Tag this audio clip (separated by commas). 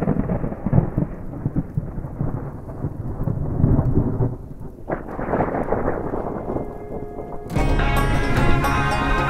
thunder